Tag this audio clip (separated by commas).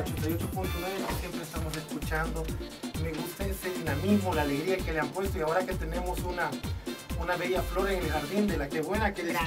Speech, Music